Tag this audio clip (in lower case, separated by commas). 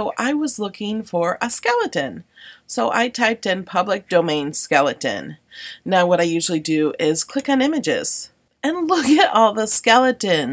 speech